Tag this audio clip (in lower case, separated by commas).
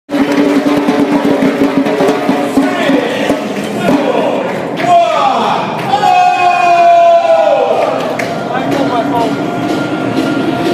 speech, music